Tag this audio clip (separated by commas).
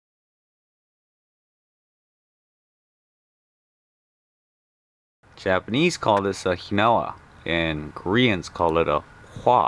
Speech